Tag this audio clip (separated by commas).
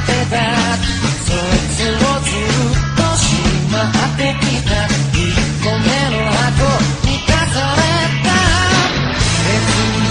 Music